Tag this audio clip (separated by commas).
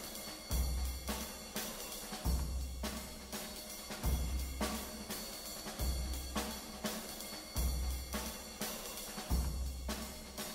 Music, Soundtrack music, Background music